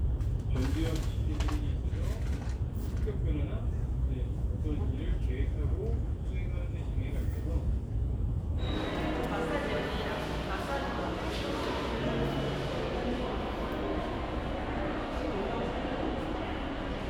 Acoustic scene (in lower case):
crowded indoor space